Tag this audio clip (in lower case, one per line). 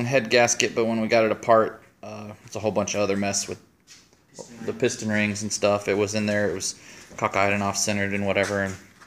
speech